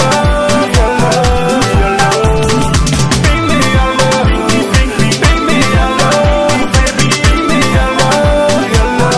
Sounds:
music

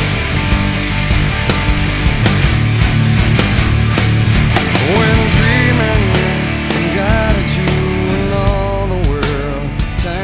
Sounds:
progressive rock, music

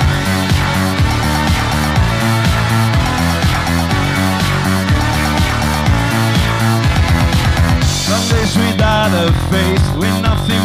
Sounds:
music

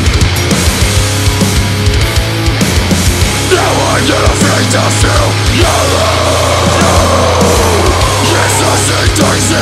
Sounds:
music

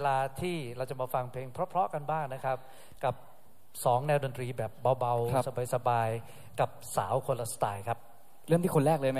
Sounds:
speech

